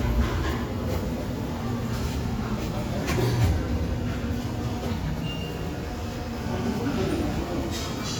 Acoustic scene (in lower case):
subway station